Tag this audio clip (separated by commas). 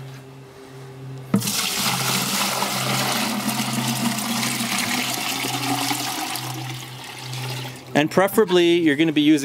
Speech